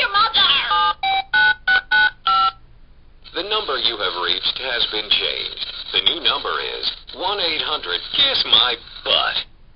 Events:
[0.00, 0.70] female speech
[0.00, 9.75] background noise
[0.66, 2.11] telephone dialing
[2.25, 2.56] telephone dialing
[3.20, 5.58] man speaking
[5.90, 9.43] man speaking

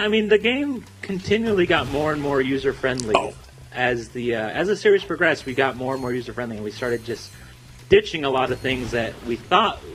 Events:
[0.00, 0.79] man speaking
[0.00, 9.94] music
[0.00, 9.94] video game sound
[0.81, 1.23] computer keyboard
[1.01, 3.31] man speaking
[1.60, 3.08] sound effect
[2.92, 3.43] computer keyboard
[3.65, 7.24] man speaking
[5.29, 6.27] sound effect
[6.72, 7.94] sound effect
[7.72, 8.39] computer keyboard
[7.86, 9.31] man speaking
[8.48, 8.81] sound effect
[9.49, 9.94] man speaking

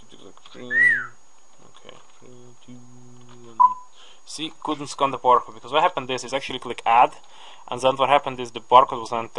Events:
[0.00, 0.69] computer keyboard
[0.00, 9.35] mechanisms
[0.11, 1.24] man speaking
[0.69, 1.11] whistling
[1.39, 2.27] computer keyboard
[1.62, 1.98] man speaking
[2.22, 3.78] man speaking
[3.20, 3.43] clicking
[3.58, 3.90] brief tone
[3.91, 4.24] breathing
[4.28, 4.55] man speaking
[4.69, 7.22] man speaking
[7.24, 7.37] clicking
[7.29, 7.66] breathing
[7.73, 9.35] man speaking

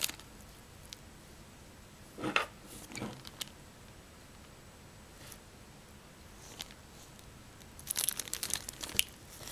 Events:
[0.00, 0.22] crinkling
[0.00, 9.51] mechanisms
[0.34, 0.42] tick
[0.86, 0.95] tick
[1.92, 2.30] surface contact
[2.27, 2.41] generic impact sounds
[2.62, 3.26] generic impact sounds
[2.86, 3.42] crinkling
[5.14, 5.43] surface contact
[6.30, 6.50] surface contact
[6.47, 6.69] crinkling
[6.90, 7.25] surface contact
[7.53, 9.02] crinkling
[8.15, 8.58] speech
[8.93, 9.07] generic impact sounds
[9.26, 9.51] crinkling

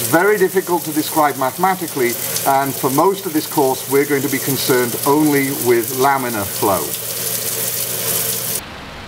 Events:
[0.00, 2.15] man speaking
[0.00, 8.57] mechanisms
[0.00, 8.57] water tap
[2.42, 6.87] man speaking
[8.57, 9.05] background noise

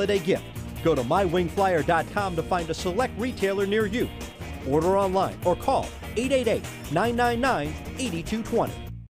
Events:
[0.00, 0.34] male speech
[0.00, 9.07] music
[0.79, 4.11] male speech
[4.61, 5.93] male speech
[6.17, 6.68] male speech
[6.92, 7.73] male speech
[7.97, 8.82] male speech

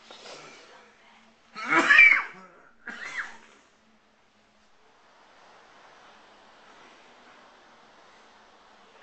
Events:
[0.00, 0.67] human sounds
[0.00, 9.02] mechanisms
[0.04, 0.15] generic impact sounds
[0.59, 1.30] whispering
[1.52, 3.54] cough
[1.87, 2.24] human voice
[2.26, 2.41] generic impact sounds
[3.37, 3.56] generic impact sounds
[4.55, 4.75] surface contact
[7.98, 8.30] surface contact

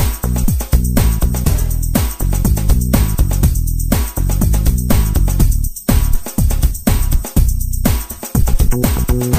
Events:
[0.00, 9.35] music

